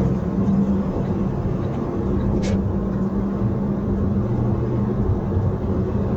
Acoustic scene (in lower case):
car